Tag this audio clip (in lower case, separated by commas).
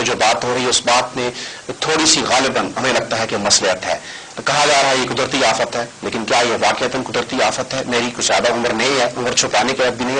speech